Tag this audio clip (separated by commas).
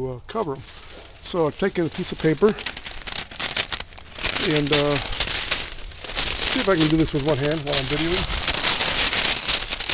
Speech